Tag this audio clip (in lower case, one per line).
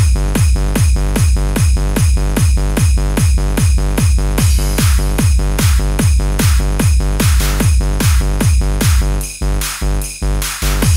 music